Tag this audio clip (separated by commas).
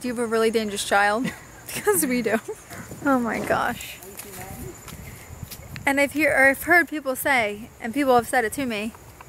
Speech, outside, rural or natural